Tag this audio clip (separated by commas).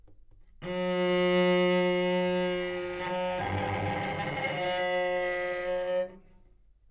Bowed string instrument, Music, Musical instrument